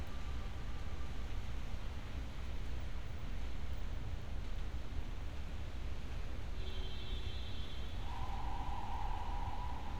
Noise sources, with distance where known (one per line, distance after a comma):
car horn, near